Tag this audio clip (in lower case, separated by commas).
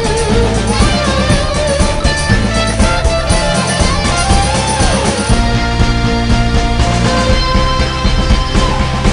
music, theme music, exciting music, background music